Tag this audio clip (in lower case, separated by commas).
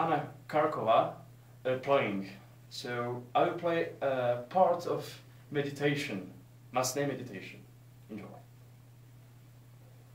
speech